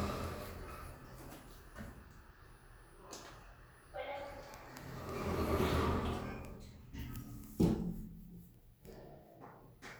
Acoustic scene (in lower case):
elevator